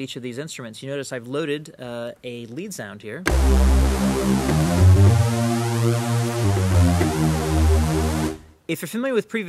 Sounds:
sampler, music, speech, drum machine

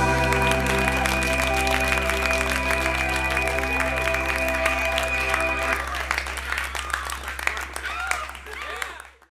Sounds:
music, speech

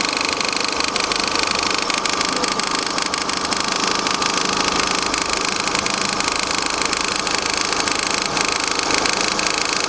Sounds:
speech

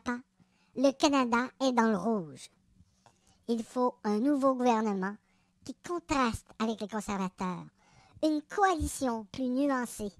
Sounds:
speech

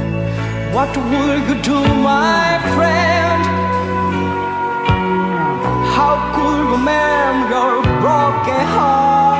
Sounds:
music

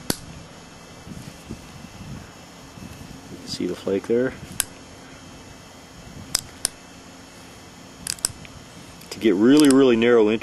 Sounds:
outside, urban or man-made, speech

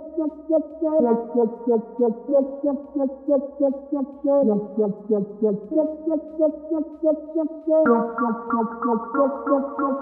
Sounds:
electronic music, music

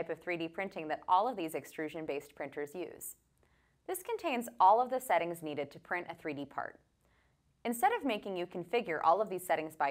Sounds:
speech

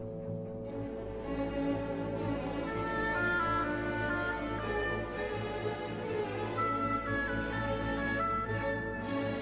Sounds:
music, musical instrument, fiddle

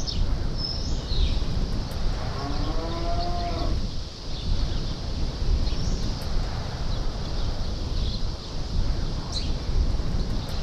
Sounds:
livestock, moo, cattle

